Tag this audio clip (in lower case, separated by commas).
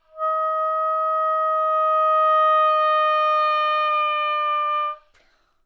wind instrument, music, musical instrument